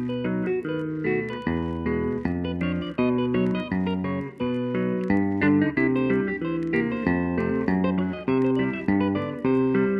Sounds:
tapping guitar

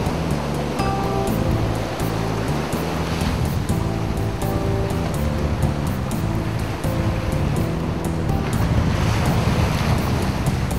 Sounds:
Wind, Waves, Wind noise (microphone), Ocean

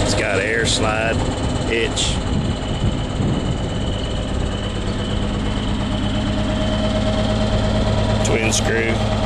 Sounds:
Vehicle, Speech

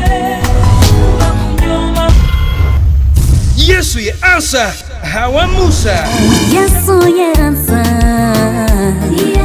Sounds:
Speech, Music, Gospel music

